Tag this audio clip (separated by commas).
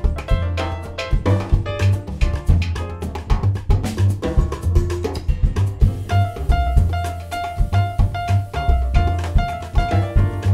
Percussion, Music